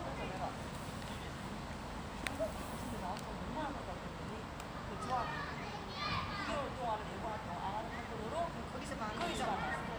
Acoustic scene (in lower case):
residential area